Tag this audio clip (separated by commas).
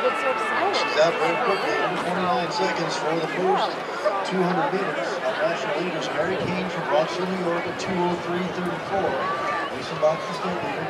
outside, urban or man-made, Speech